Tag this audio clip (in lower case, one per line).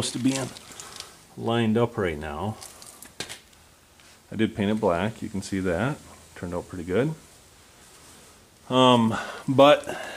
speech
inside a large room or hall